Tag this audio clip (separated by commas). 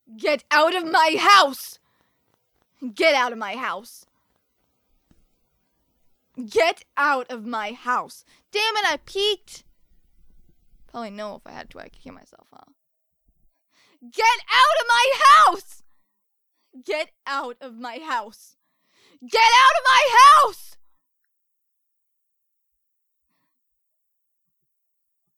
Shout, Human voice, Yell